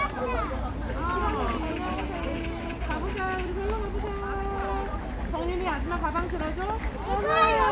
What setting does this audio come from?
park